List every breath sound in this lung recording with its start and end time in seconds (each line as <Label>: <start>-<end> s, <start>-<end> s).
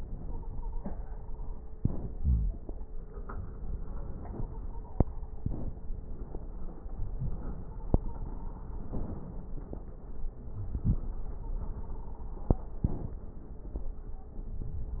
Inhalation: 1.71-2.89 s, 5.38-6.84 s, 8.82-10.39 s, 12.78-14.30 s
Exhalation: 2.89-5.00 s, 6.85-8.81 s, 10.39-12.77 s
Wheeze: 2.17-2.55 s, 9.93-10.88 s
Stridor: 0.24-1.57 s, 4.18-5.41 s, 7.52-8.81 s, 11.36-12.33 s
Crackles: 5.38-6.84 s